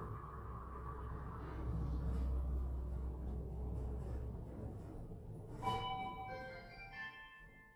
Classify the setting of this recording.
elevator